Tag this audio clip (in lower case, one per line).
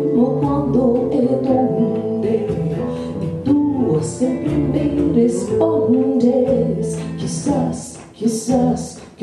music